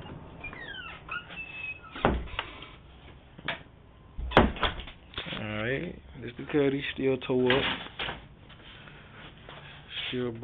Door opening and closing followed by adult male speaking